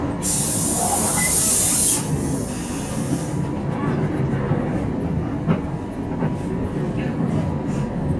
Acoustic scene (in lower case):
bus